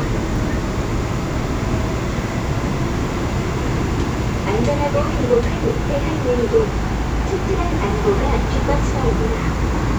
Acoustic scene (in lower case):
subway train